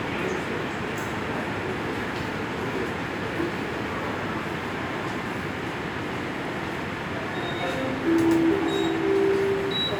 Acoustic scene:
subway station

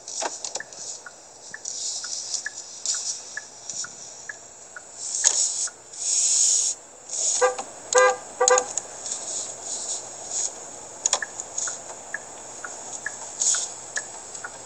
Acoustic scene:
car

